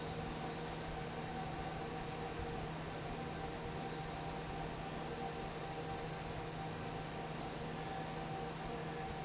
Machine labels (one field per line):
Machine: fan